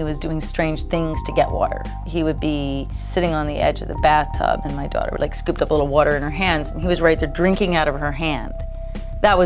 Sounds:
Music, Speech

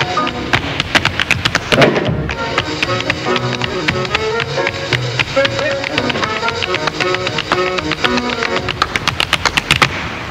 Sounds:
tap dancing

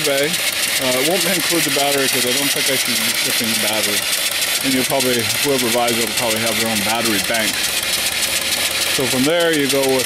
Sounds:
Engine, Speech

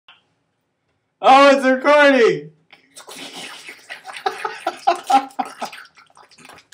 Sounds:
Speech

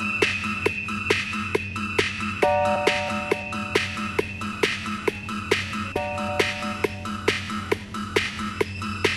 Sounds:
Electronica, Music

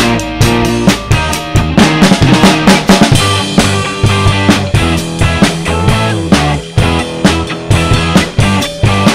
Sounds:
Musical instrument, Bass guitar, Strum, Music, Guitar, Plucked string instrument, Electric guitar

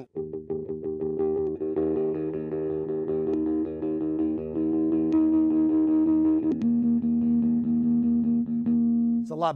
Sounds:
Speech, Effects unit, Musical instrument, Guitar, Music

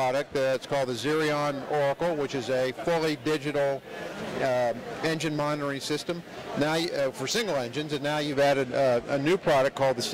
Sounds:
Speech

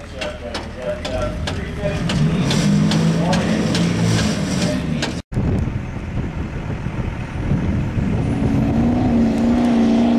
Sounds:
Car, Vehicle, Truck, Speech

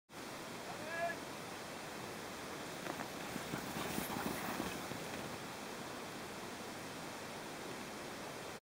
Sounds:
Speech

